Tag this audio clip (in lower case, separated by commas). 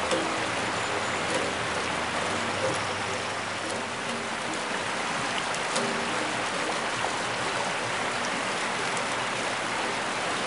stream